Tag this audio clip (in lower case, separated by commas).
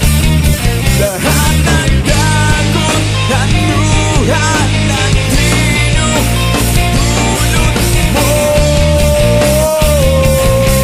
music, punk rock, grunge